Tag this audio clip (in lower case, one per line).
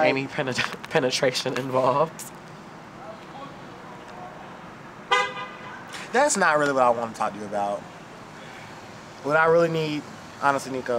speech